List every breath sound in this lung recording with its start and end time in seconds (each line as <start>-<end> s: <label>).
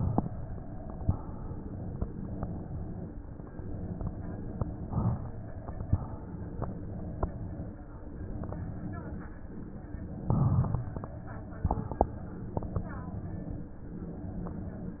0.99-2.01 s: inhalation
2.00-3.01 s: exhalation
4.90-5.92 s: inhalation
5.89-6.90 s: exhalation
10.25-11.20 s: inhalation
11.20-12.30 s: exhalation